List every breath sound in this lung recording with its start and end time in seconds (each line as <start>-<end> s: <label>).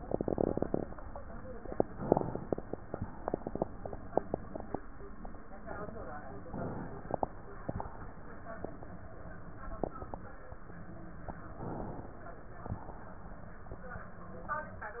2.04-3.61 s: inhalation
3.59-4.81 s: exhalation
6.48-7.71 s: inhalation
7.70-9.06 s: exhalation
11.61-12.76 s: inhalation
12.76-13.86 s: exhalation